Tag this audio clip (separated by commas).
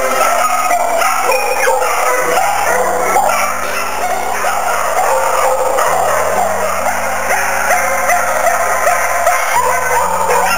Bow-wow